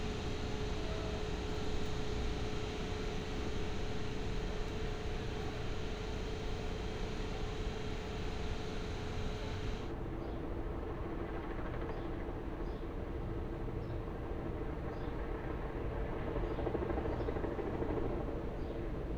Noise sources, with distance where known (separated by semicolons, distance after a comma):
medium-sounding engine